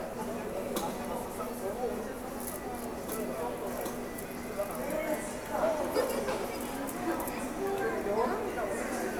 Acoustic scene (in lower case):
subway station